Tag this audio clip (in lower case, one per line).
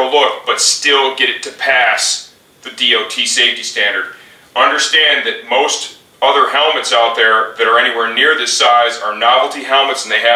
speech